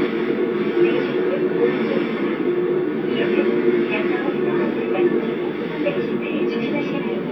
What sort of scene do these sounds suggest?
subway train